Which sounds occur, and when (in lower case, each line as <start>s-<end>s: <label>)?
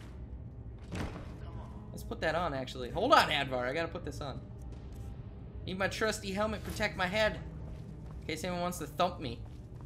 0.0s-9.8s: sound effect
8.2s-9.4s: male speech
9.7s-9.8s: footsteps